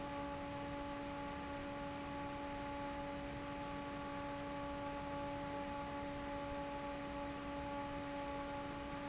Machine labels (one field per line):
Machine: fan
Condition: normal